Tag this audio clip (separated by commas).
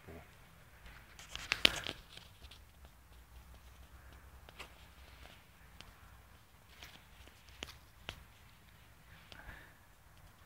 Animal, pets, Dog